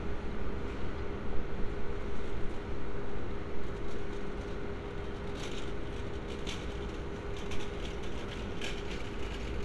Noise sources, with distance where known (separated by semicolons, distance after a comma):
unidentified impact machinery, far